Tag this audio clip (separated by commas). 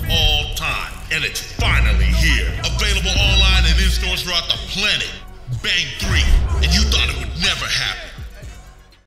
Speech, Music